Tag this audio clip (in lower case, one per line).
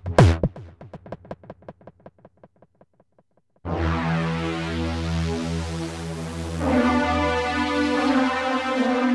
playing synthesizer
drum machine
music
synthesizer